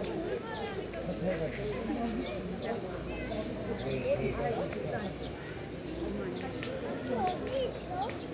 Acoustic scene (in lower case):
park